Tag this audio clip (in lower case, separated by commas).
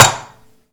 dishes, pots and pans, home sounds